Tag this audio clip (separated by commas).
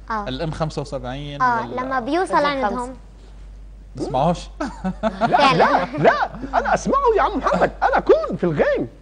Speech